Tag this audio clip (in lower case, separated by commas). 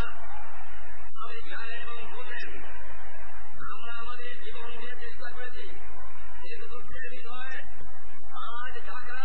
male speech, speech, monologue